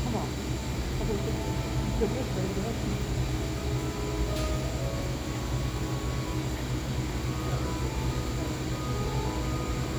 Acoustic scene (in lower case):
cafe